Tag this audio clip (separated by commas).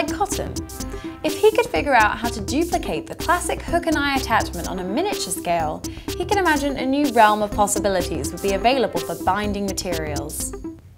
Music, Speech